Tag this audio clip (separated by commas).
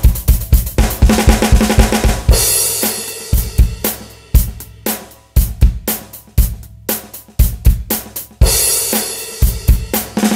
Musical instrument, Drum, Bass drum, playing drum kit, Drum kit, Music